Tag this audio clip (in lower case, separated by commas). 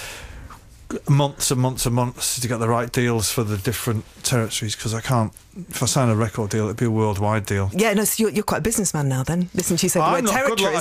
speech